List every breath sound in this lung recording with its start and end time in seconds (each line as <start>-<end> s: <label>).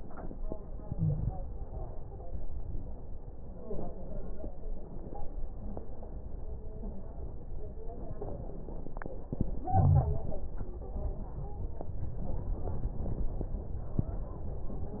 0.81-1.55 s: inhalation
0.81-1.55 s: crackles
9.35-10.80 s: inhalation
10.59-11.83 s: stridor